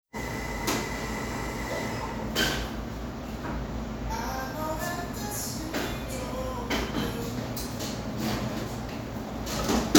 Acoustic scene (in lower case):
cafe